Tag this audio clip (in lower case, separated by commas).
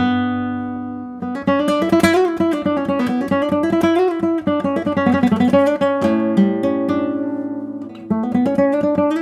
music, guitar, acoustic guitar, strum, plucked string instrument, musical instrument